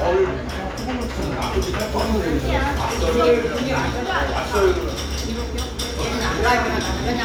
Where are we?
in a restaurant